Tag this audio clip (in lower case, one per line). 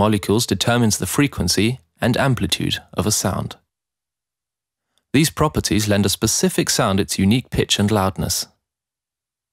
speech